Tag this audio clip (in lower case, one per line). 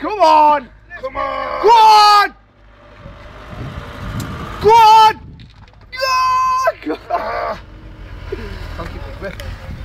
motor vehicle (road)
speech
vehicle